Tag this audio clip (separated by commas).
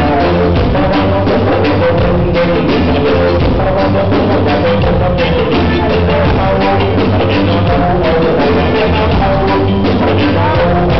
Music